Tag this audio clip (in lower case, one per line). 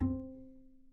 musical instrument
music
bowed string instrument